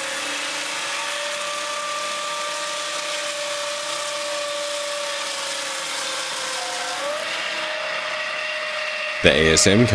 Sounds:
Speech

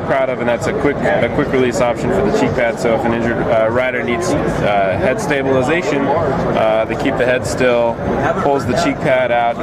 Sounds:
Speech

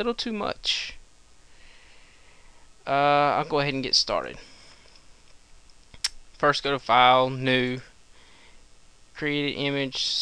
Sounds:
Speech

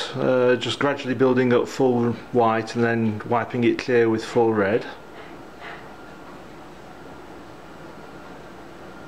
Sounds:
Speech

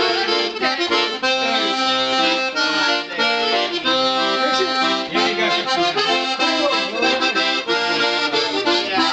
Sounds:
Speech, Music

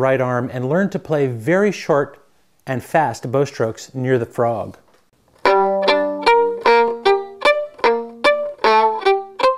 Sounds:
Music, Speech

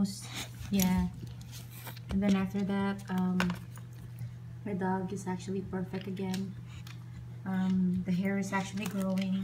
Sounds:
Speech

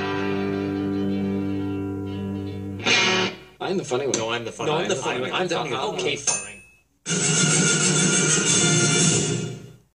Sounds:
Music, Speech, Television

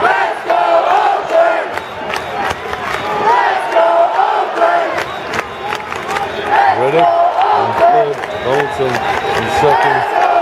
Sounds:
Speech

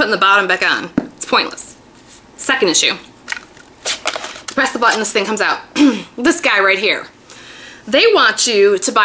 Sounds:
Speech, inside a small room

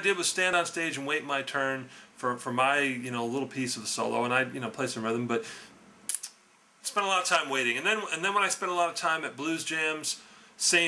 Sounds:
Speech

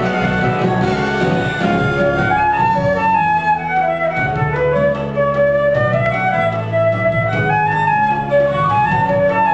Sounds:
playing flute, Flute, woodwind instrument

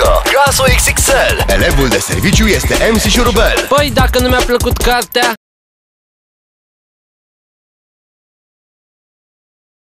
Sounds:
Background music, Music, Speech

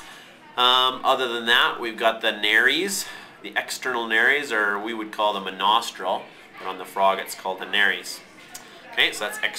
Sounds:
Speech

